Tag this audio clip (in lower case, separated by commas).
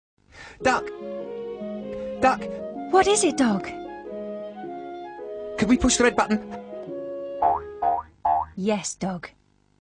music, speech